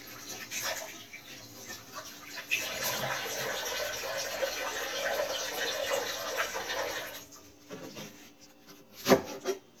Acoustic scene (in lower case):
kitchen